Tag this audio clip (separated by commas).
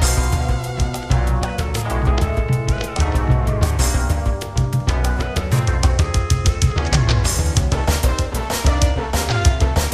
Music